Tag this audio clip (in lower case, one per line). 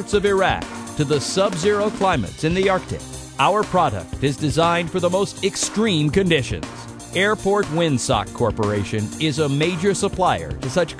music
speech